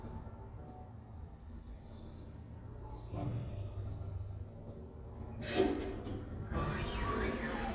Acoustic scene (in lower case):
elevator